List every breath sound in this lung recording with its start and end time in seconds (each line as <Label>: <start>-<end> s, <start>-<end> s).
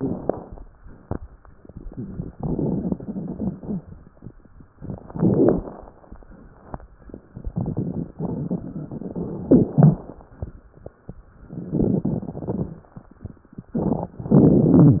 Inhalation: 4.86-5.94 s, 11.54-12.73 s
Crackles: 0.00-0.55 s, 1.50-3.93 s, 4.86-5.94 s, 7.27-10.06 s, 11.54-12.73 s